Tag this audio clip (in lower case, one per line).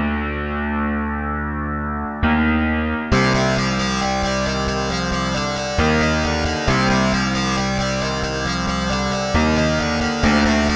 music